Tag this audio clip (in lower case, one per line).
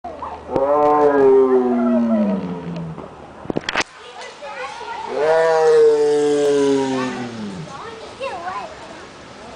animal
roar
cat